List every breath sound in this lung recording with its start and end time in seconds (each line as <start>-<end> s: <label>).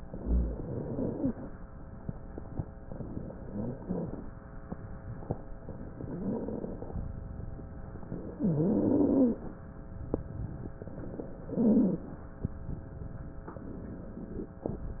0.00-1.51 s: inhalation
0.18-1.32 s: stridor
2.78-4.29 s: inhalation
3.39-4.29 s: stridor
5.91-6.94 s: inhalation
5.99-6.84 s: stridor
8.30-9.41 s: inhalation
8.32-9.43 s: stridor
10.88-12.18 s: inhalation
11.39-12.13 s: stridor
13.48-14.54 s: inhalation